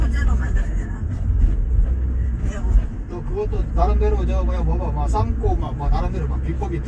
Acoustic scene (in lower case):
car